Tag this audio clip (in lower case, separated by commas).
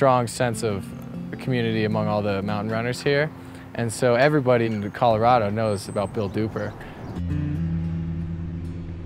outside, urban or man-made, music, speech